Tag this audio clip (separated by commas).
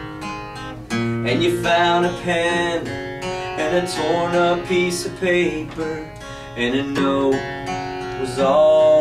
Music, Acoustic guitar